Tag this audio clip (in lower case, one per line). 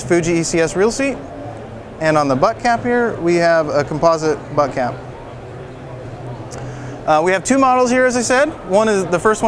speech